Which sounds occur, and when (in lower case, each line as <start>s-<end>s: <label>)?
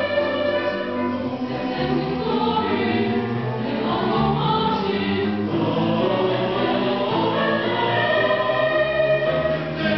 0.0s-9.9s: choir
0.0s-9.9s: music